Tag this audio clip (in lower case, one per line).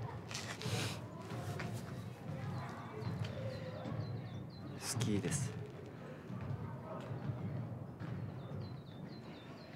speech